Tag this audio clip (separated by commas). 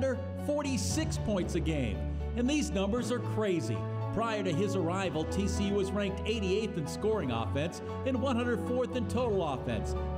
Male speech, Speech, Music, Narration